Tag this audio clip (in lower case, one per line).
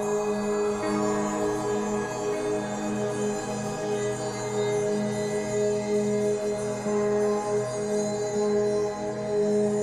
music